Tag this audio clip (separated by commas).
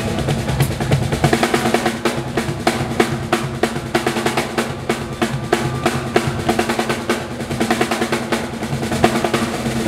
Bass drum, Musical instrument, Drum, Music, playing drum kit, Drum kit